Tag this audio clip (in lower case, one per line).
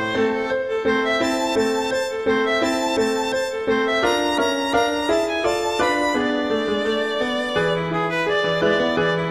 violin
music